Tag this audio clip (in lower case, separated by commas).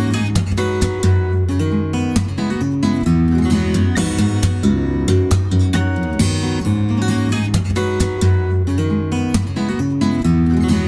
music